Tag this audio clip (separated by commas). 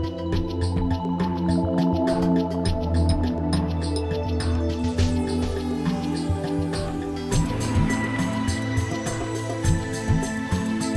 Music, Tender music